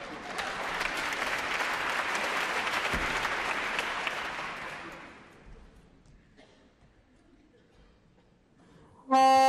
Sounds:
music

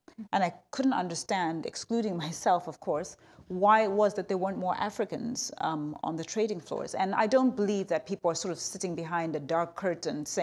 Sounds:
speech, female speech

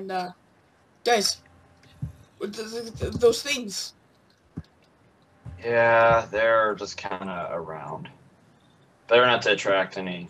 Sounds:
speech

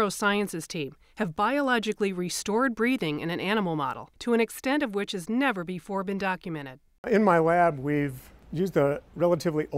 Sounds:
speech

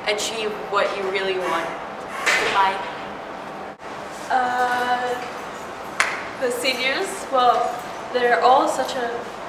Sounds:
inside a small room, speech

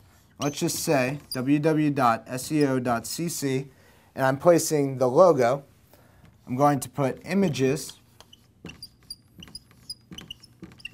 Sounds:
speech

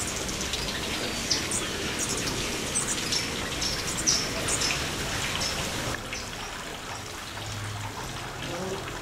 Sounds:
bird, outside, rural or natural, water

